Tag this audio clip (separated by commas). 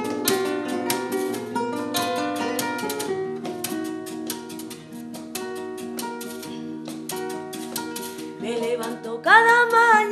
Music